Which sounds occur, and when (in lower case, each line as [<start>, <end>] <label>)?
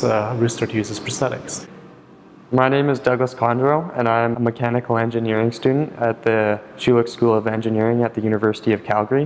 [0.00, 1.66] man speaking
[0.00, 9.25] background noise
[2.48, 6.55] man speaking
[6.77, 9.25] man speaking